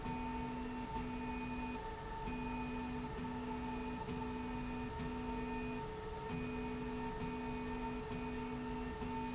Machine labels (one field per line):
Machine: slide rail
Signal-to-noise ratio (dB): 0 dB